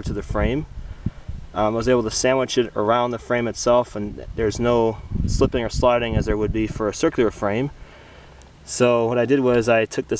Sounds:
Speech

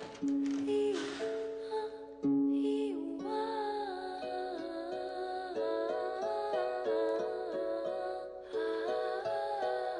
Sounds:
Lullaby, Music

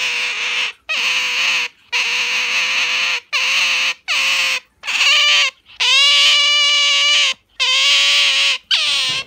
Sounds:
otter growling

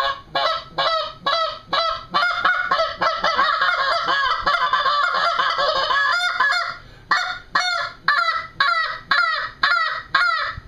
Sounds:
Honk, Fowl, Goose

